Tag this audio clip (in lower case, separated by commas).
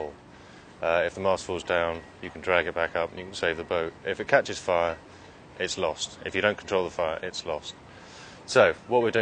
speech